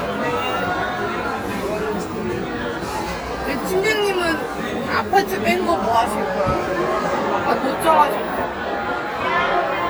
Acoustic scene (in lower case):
crowded indoor space